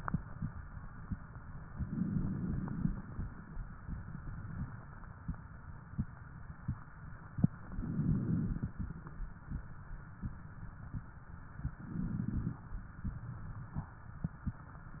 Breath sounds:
1.69-3.01 s: inhalation
7.50-8.82 s: inhalation
11.66-12.71 s: inhalation

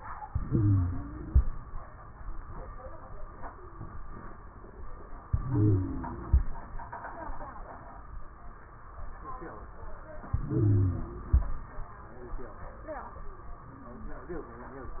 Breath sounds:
0.26-1.41 s: inhalation
0.26-1.41 s: wheeze
5.30-6.46 s: inhalation
5.30-6.46 s: wheeze
10.31-11.47 s: inhalation
10.31-11.47 s: wheeze

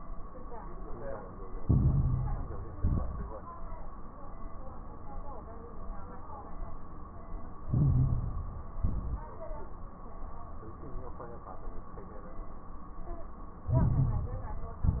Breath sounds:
1.61-2.71 s: inhalation
1.61-2.71 s: crackles
2.73-3.30 s: exhalation
2.73-3.30 s: crackles
7.66-8.76 s: inhalation
7.66-8.76 s: crackles
8.82-9.38 s: exhalation
8.82-9.38 s: crackles
13.72-14.82 s: inhalation
13.72-14.82 s: crackles
14.88-15.00 s: exhalation
14.88-15.00 s: crackles

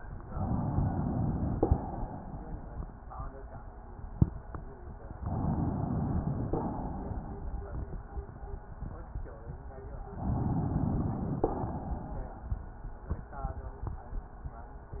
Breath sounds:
0.28-1.54 s: inhalation
1.54-2.86 s: exhalation
5.24-6.56 s: inhalation
6.56-7.84 s: exhalation
10.15-11.42 s: inhalation
11.42-12.50 s: exhalation

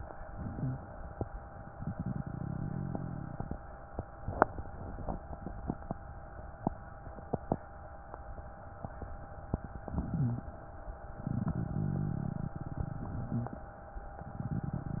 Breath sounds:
0.00-1.47 s: inhalation
0.31-0.80 s: wheeze
1.48-3.60 s: exhalation
9.81-11.13 s: inhalation
10.10-10.52 s: wheeze
11.16-13.82 s: exhalation

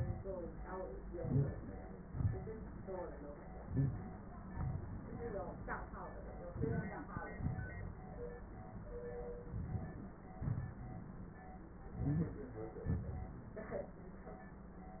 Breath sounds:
1.04-2.07 s: inhalation
2.06-2.83 s: exhalation
2.06-2.83 s: crackles
3.65-4.46 s: inhalation
4.47-5.02 s: exhalation
6.49-7.32 s: inhalation
7.33-7.99 s: exhalation
7.33-7.99 s: crackles
9.47-10.19 s: inhalation
10.21-10.80 s: exhalation
10.21-10.80 s: crackles
11.82-12.70 s: inhalation
12.71-13.50 s: exhalation
12.71-13.50 s: crackles

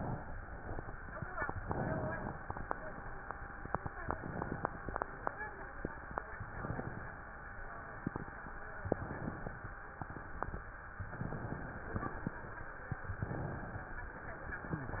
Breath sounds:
1.39-2.38 s: inhalation
3.86-4.85 s: inhalation
6.27-7.26 s: inhalation
8.78-9.77 s: inhalation
9.90-10.68 s: exhalation
10.98-12.24 s: inhalation
13.18-14.16 s: inhalation
14.72-15.00 s: inhalation

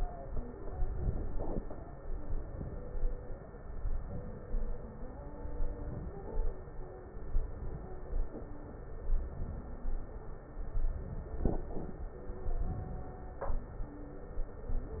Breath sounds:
0.85-1.65 s: inhalation
2.16-2.96 s: inhalation
4.09-4.75 s: inhalation
5.81-6.46 s: inhalation
7.29-7.95 s: inhalation
9.09-9.82 s: inhalation
10.64-11.37 s: inhalation
12.59-13.18 s: inhalation

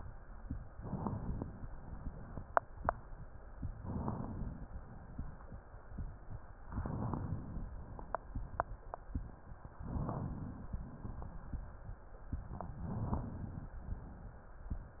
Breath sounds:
0.70-1.69 s: inhalation
0.70-1.69 s: crackles
3.68-4.67 s: inhalation
6.71-7.71 s: inhalation
9.77-10.76 s: inhalation
12.91-13.78 s: inhalation

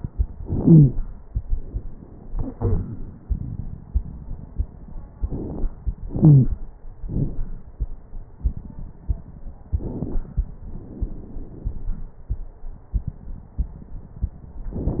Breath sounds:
0.58-0.95 s: wheeze
5.20-5.69 s: inhalation
5.20-5.69 s: crackles
6.05-6.61 s: exhalation
6.17-6.54 s: wheeze
9.73-10.60 s: inhalation
9.73-10.60 s: crackles
10.64-12.26 s: exhalation
10.64-12.26 s: crackles

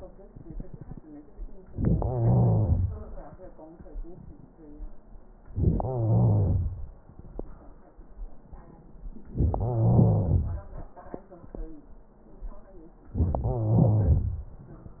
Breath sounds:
1.98-3.01 s: wheeze
5.74-6.78 s: wheeze
9.42-10.66 s: wheeze
13.21-14.48 s: wheeze

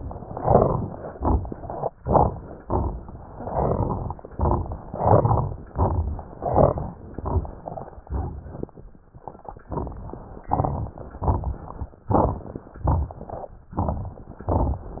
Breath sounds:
0.30-0.99 s: inhalation
0.30-0.99 s: crackles
1.10-1.92 s: exhalation
1.10-1.76 s: crackles
1.92-2.58 s: inhalation
1.92-2.58 s: crackles
2.64-3.30 s: exhalation
2.64-3.30 s: crackles
3.44-4.17 s: inhalation
3.44-4.17 s: crackles
4.25-4.86 s: exhalation
4.25-4.86 s: crackles
4.93-5.67 s: inhalation
4.93-5.67 s: crackles
5.73-6.43 s: exhalation
5.73-6.43 s: crackles
6.47-7.17 s: inhalation
6.47-7.17 s: crackles
7.21-7.91 s: exhalation
7.21-7.91 s: crackles
8.05-8.75 s: inhalation
8.05-8.75 s: crackles
9.73-10.44 s: exhalation
9.73-10.44 s: crackles
10.47-11.18 s: inhalation
10.47-11.18 s: crackles
11.21-11.97 s: exhalation
11.21-11.97 s: crackles
12.05-12.71 s: inhalation
12.05-12.71 s: crackles
12.87-13.62 s: exhalation
12.87-13.62 s: crackles
13.70-14.46 s: inhalation
13.70-14.46 s: crackles
14.48-15.00 s: exhalation
14.48-15.00 s: crackles

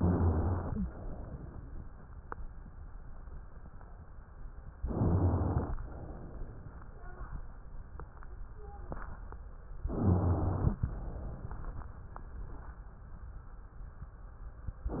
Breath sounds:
0.00-0.85 s: rhonchi
0.00-0.87 s: inhalation
0.90-1.84 s: exhalation
4.84-5.73 s: rhonchi
4.86-5.74 s: inhalation
5.78-7.01 s: exhalation
9.90-10.79 s: rhonchi
9.90-10.79 s: inhalation
10.85-12.31 s: exhalation
14.94-15.00 s: inhalation

